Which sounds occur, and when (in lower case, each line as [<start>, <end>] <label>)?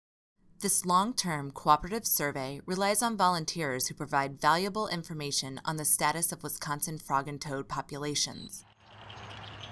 [0.52, 8.57] woman speaking
[8.27, 8.60] bird call
[8.72, 9.71] vehicle
[9.13, 9.31] bird call
[9.53, 9.71] bird call